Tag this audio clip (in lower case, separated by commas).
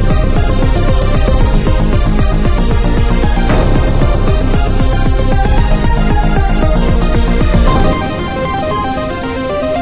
video game music, music